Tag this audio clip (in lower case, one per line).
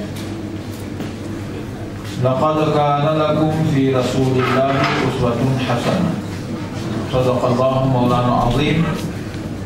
narration
speech
man speaking